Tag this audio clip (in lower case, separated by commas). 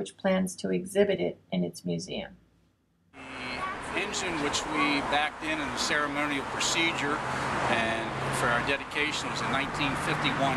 vehicle, speech